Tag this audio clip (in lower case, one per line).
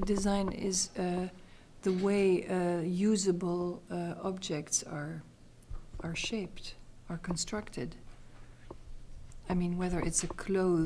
speech